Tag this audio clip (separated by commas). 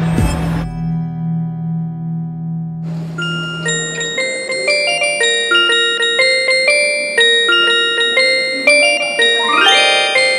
Chime, Mallet percussion